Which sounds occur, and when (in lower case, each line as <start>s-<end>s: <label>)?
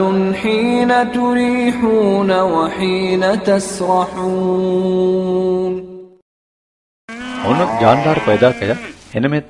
0.0s-6.2s: male singing
7.0s-9.1s: wind
7.1s-8.9s: moo
7.4s-8.8s: male speech